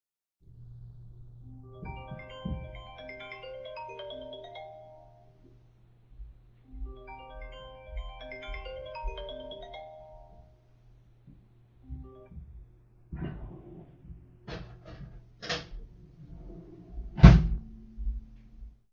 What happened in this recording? phone was ringing, then I open drawer, take pen and close drawer